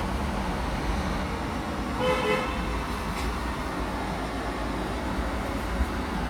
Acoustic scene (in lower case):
street